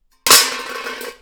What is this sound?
metal object falling